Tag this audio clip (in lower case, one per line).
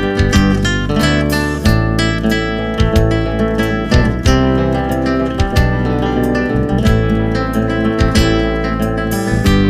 music